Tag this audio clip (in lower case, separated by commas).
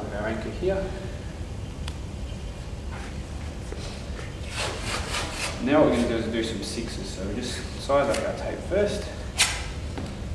speech